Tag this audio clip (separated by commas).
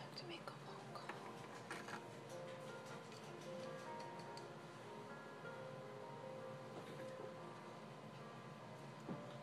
Music